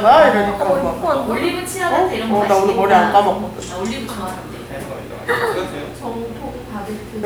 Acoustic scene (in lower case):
crowded indoor space